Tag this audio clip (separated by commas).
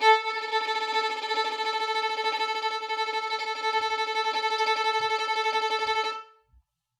Bowed string instrument, Music, Musical instrument